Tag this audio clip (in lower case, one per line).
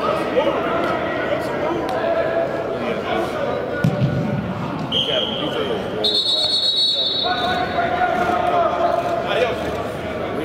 speech